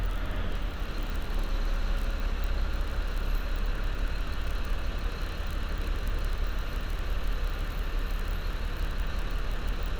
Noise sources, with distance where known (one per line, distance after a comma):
engine of unclear size, near